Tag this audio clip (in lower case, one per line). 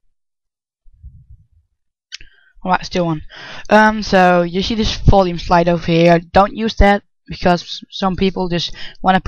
speech